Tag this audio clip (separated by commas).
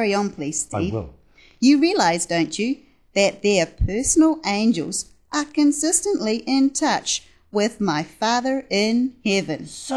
Speech